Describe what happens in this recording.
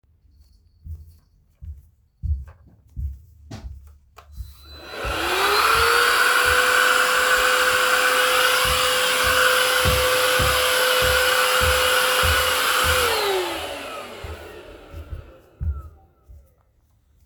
I walked to the vacuum cleaner in the living room and turned it on. I started vacuuming the floor while moving around the room.